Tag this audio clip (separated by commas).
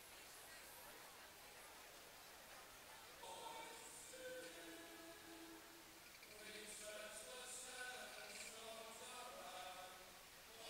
Speech